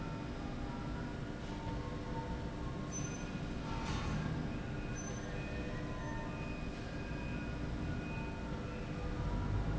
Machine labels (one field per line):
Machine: slide rail